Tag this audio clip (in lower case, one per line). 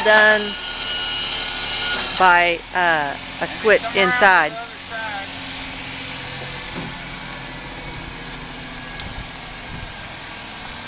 vehicle
truck
speech